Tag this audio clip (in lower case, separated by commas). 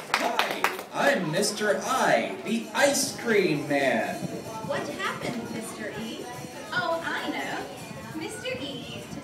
male speech, speech, music